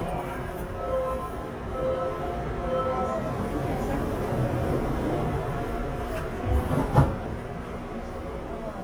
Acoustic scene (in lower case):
subway train